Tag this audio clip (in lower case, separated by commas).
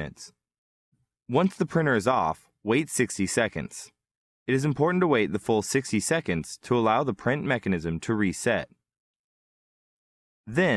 speech